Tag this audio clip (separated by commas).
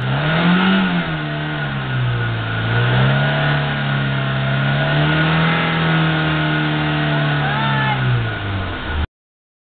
Vehicle, Speech, revving, Car